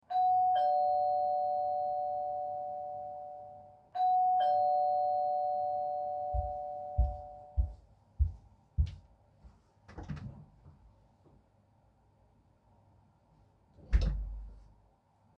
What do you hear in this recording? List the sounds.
bell ringing, footsteps, door